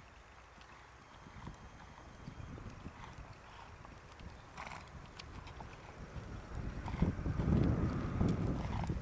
A horse is trotting